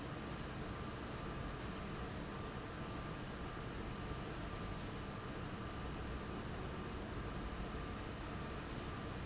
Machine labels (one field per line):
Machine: fan